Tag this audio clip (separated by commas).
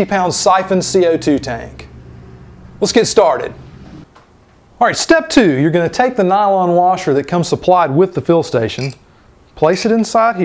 Speech